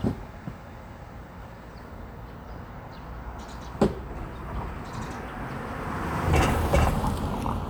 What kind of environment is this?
residential area